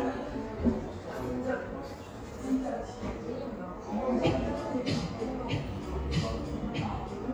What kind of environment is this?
cafe